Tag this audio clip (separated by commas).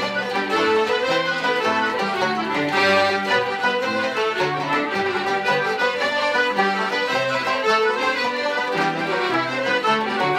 woodwind instrument